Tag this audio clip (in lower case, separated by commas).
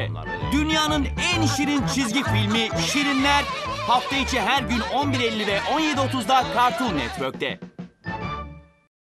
music, speech